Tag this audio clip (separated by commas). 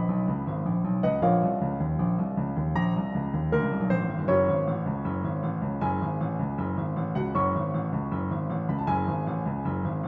Music, Background music